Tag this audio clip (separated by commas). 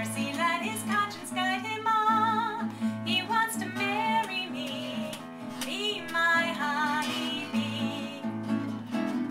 Strum, Music, Acoustic guitar, Tender music, slide guitar